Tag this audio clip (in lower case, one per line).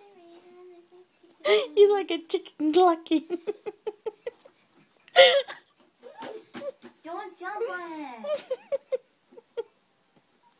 giggle
speech
inside a small room